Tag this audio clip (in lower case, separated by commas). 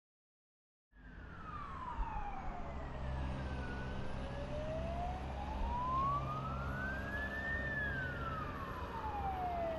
police car (siren), emergency vehicle, siren